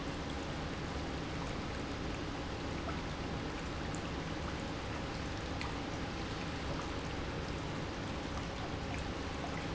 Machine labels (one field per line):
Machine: pump